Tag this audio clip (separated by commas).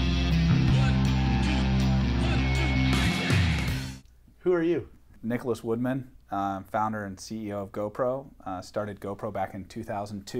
Music, Speech